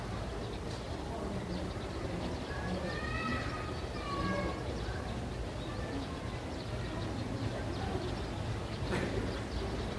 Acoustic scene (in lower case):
residential area